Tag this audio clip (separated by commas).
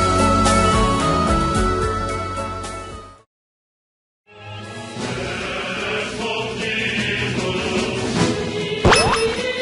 Music